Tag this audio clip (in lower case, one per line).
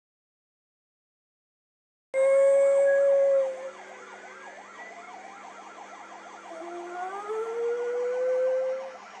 dog howling